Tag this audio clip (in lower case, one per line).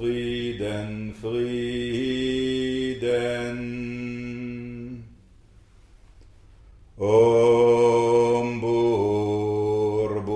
mantra